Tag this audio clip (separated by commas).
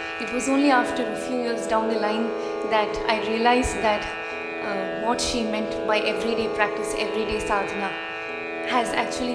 Musical instrument, Speech, Music